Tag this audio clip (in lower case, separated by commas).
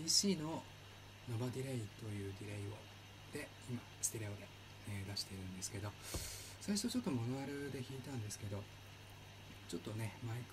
speech